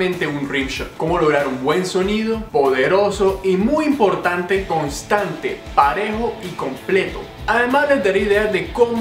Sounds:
Speech, Music, Bass drum

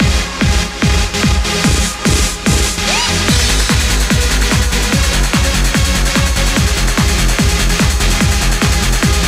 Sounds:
Music, Techno

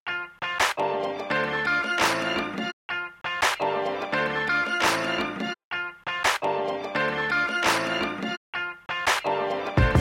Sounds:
Music

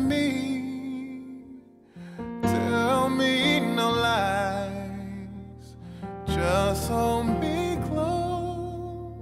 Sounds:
Music, Singing

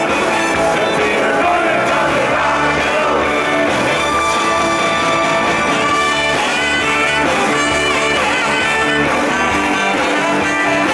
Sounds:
Roll, Music, Rock and roll

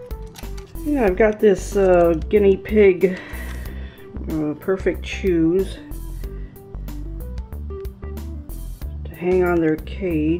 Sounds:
Speech, Music

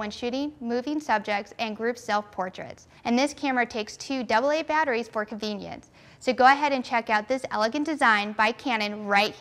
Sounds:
Speech

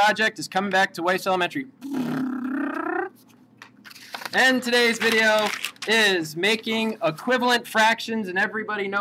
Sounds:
Speech, inside a small room

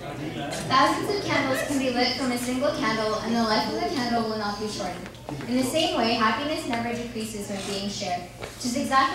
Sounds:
monologue, Speech, man speaking, Female speech

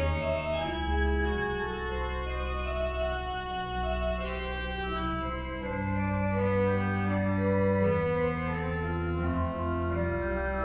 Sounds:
playing hammond organ, Hammond organ, Organ

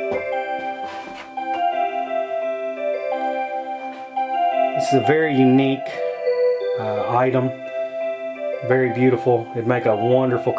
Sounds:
Music, Speech

